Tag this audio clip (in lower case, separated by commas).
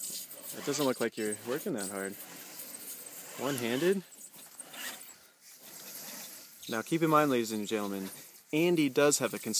pulleys